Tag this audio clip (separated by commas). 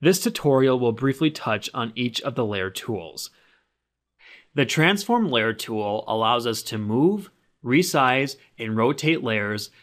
Speech